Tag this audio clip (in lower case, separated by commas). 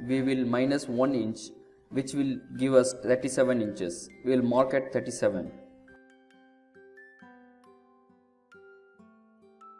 speech, music